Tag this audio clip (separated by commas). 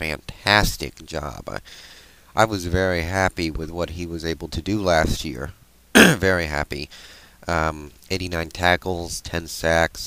Speech